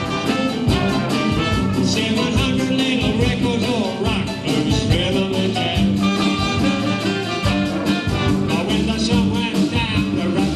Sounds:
music
rock music
brass instrument
guitar
bowed string instrument
rock and roll
musical instrument
plucked string instrument

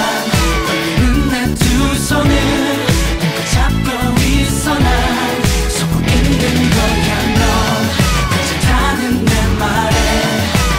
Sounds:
independent music

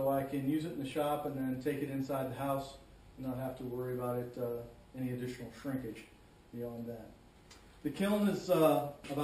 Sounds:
speech

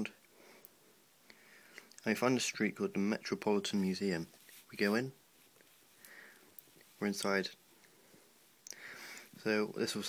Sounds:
speech

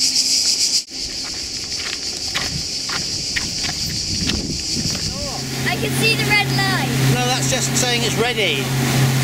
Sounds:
outside, rural or natural
motorboat
speech

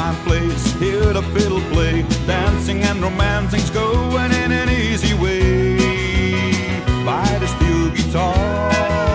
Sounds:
music
exciting music

